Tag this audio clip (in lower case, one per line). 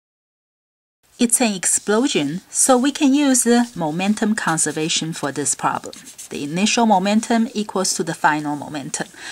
speech